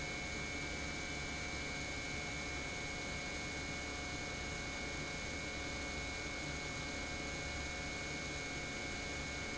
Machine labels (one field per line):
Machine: pump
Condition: normal